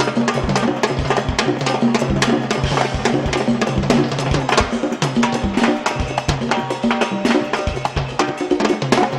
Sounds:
Percussion, Wood block, Music

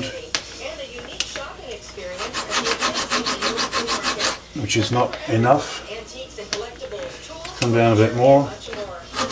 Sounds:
Rub, Filing (rasp)

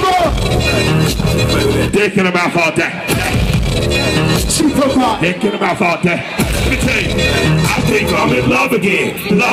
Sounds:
Music

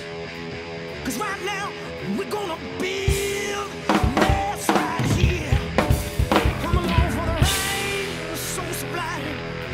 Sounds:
Music, Drum kit, Musical instrument, Drum

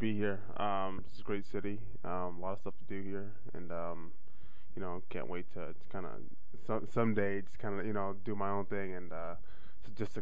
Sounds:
Speech

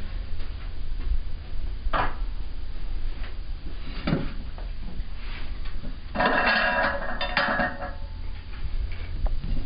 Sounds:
Speech

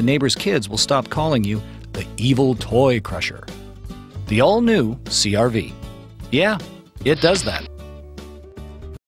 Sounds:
Speech, Music

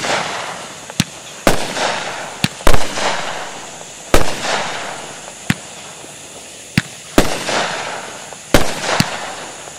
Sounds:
Fireworks, fireworks banging

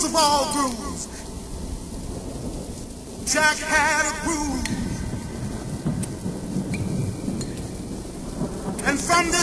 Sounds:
Speech

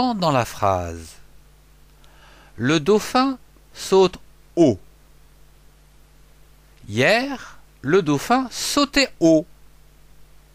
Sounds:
Speech

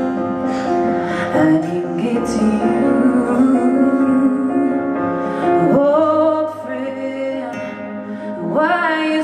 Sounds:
Music

